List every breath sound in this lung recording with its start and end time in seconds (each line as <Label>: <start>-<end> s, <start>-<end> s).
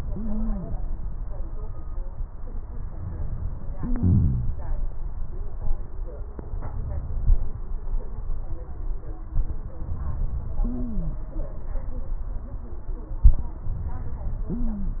Wheeze: 3.77-4.62 s
Stridor: 0.09-0.69 s, 10.60-11.15 s, 14.52-15.00 s